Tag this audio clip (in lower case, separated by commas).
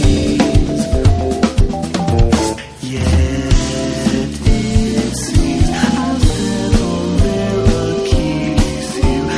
drum, cymbal, playing drum kit, musical instrument, drum kit, music, hi-hat